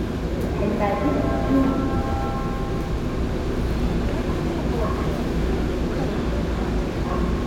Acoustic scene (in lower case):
subway train